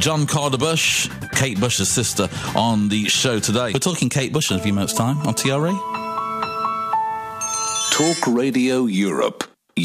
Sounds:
speech
music

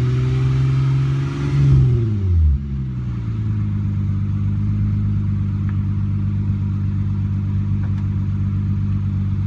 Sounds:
rustle

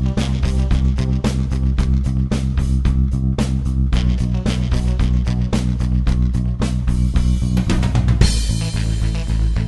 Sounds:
music

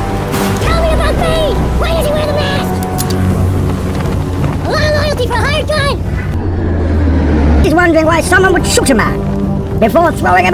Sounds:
speech
music

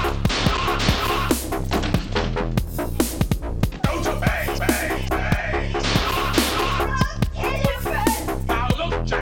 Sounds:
electronic music
dubstep
music
speech

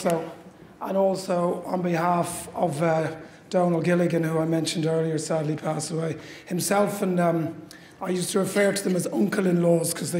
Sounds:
speech

